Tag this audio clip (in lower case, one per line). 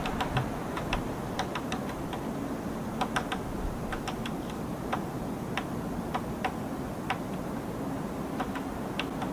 woodpecker pecking tree